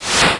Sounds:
fire

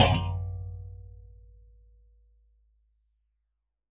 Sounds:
thump

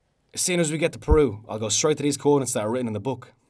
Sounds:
human voice
speech

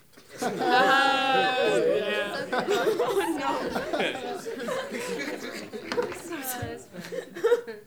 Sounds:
laughter
human voice

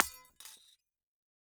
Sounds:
glass
shatter

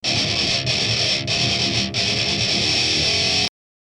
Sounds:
plucked string instrument
music
musical instrument
guitar

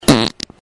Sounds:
fart

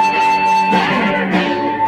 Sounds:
plucked string instrument
guitar
music
musical instrument

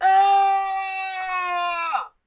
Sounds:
screaming
human voice

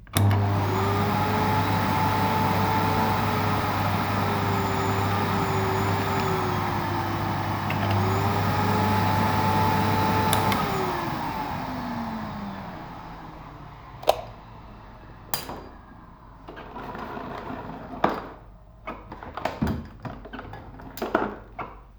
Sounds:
domestic sounds

